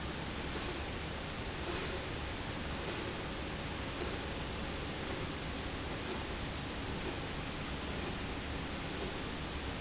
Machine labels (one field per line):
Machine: slide rail